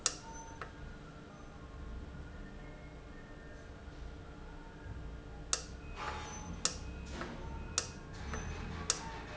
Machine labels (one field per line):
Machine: valve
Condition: normal